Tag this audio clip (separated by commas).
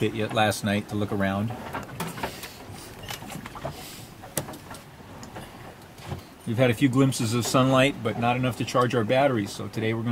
Speech